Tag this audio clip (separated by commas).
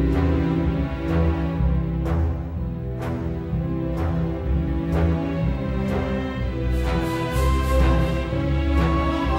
Music